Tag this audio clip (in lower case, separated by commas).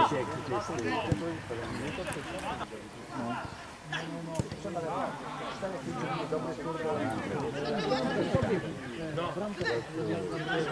speech